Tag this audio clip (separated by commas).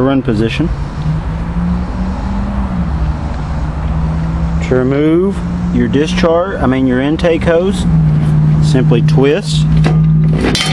Speech